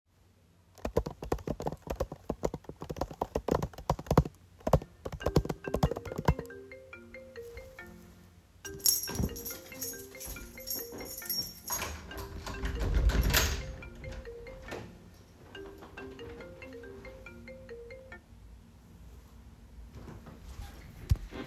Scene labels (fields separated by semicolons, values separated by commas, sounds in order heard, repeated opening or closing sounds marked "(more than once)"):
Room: kitchen, hallway; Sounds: keyboard typing, phone ringing, keys, door